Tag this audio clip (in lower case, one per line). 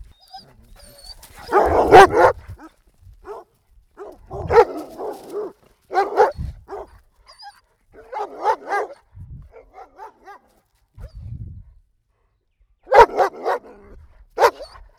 dog
pets
animal